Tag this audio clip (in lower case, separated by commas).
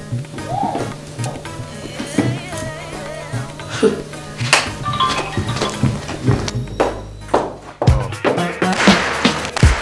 music